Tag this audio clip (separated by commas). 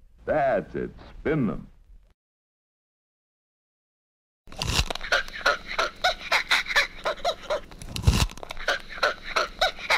Speech